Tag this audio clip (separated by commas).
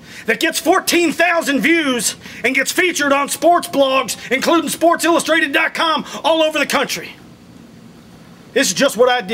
Narration, Speech, Male speech